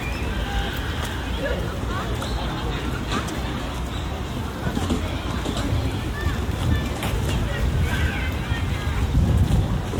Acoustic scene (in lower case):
park